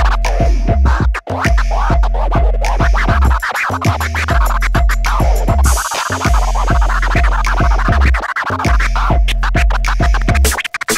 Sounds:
electronic music, scratching (performance technique), music

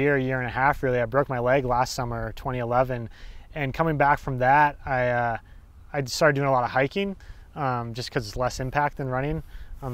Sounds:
speech

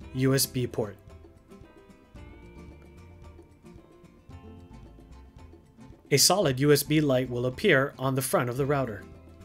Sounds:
music, speech

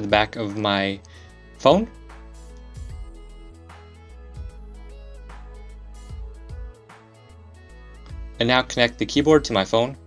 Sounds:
speech, music

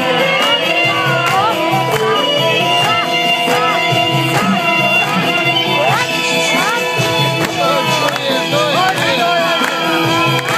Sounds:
speech, music, inside a large room or hall

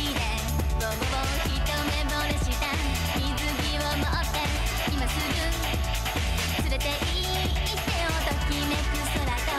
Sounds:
music

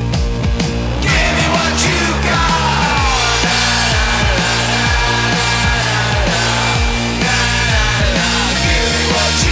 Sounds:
music, soundtrack music

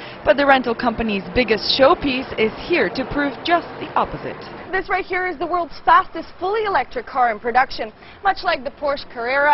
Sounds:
speech

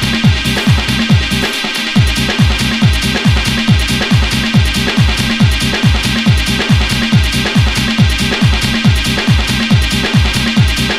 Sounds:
electronic music, music, techno

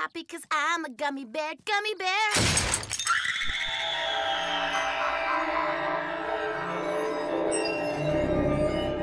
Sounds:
music, speech

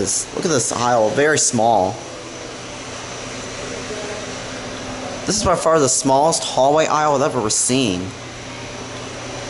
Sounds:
speech, inside a small room

